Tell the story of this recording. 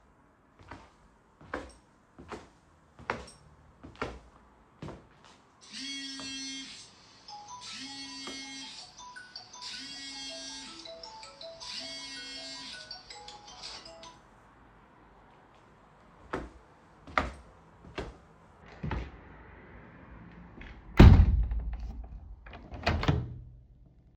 I walked across the room when my phone suddenly started ringing loudly. I then approached the window and opened it.